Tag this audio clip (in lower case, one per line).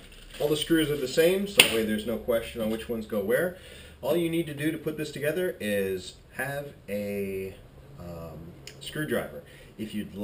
speech